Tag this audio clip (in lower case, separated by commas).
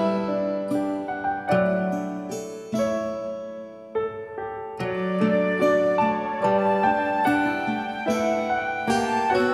harpsichord, music